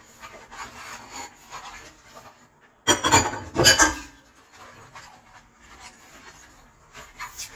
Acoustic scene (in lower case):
kitchen